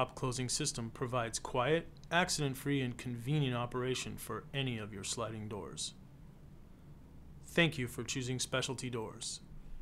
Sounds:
Speech

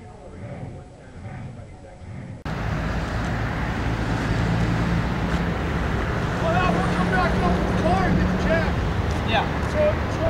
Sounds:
Vehicle, Speech

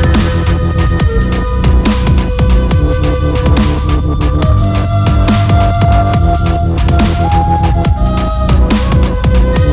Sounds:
Drum and bass, Music

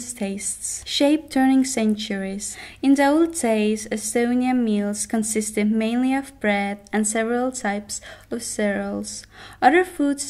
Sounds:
Speech

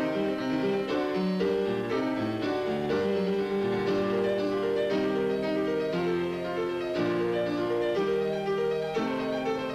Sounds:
playing harpsichord

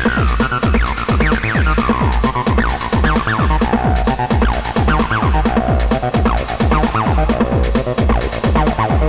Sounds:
Techno, Music

